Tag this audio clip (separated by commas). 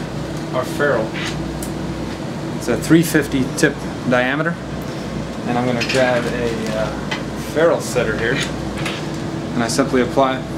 Speech